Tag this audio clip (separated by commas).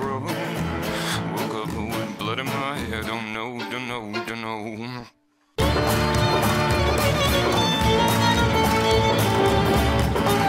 Jazz, Music